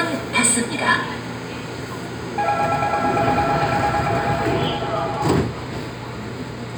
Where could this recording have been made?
on a subway train